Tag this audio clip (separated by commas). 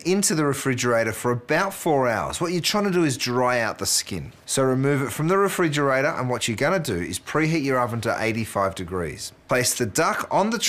Speech